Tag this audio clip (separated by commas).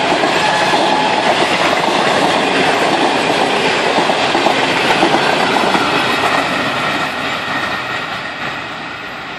Train, Vehicle, Rail transport